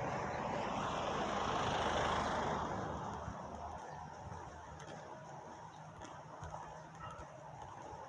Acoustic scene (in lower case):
residential area